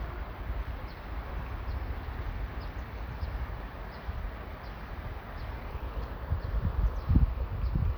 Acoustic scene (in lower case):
park